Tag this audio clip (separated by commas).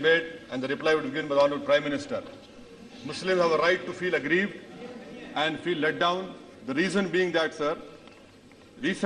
man speaking, Speech, Narration